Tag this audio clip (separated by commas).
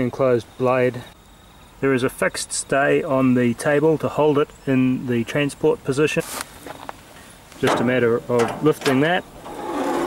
Speech